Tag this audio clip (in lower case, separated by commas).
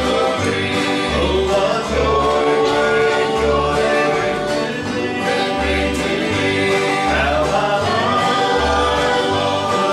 bluegrass, music